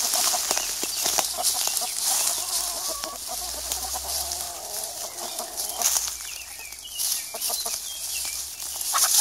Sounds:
bird

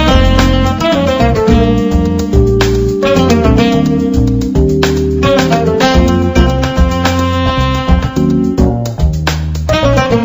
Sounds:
music
jazz

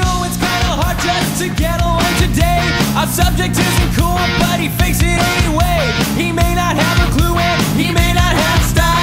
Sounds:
music

